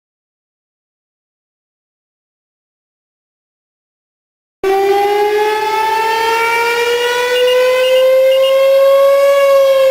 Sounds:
siren, civil defense siren

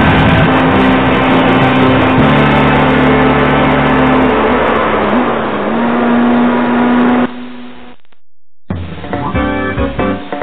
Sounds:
hammond organ, organ

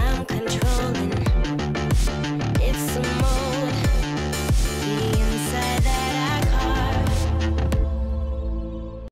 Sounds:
music

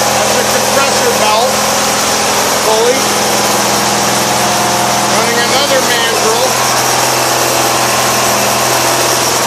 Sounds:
speech, engine

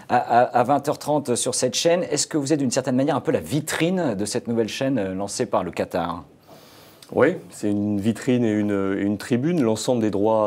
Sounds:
speech

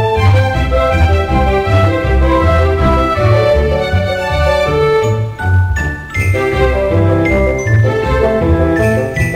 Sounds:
soundtrack music, music

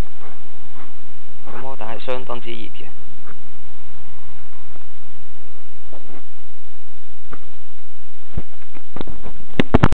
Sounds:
speech

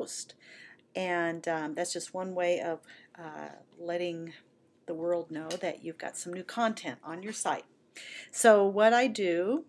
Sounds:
speech

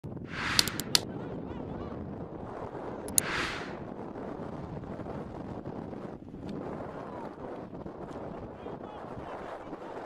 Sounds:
volcano explosion

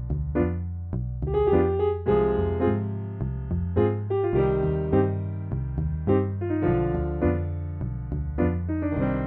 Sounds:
music

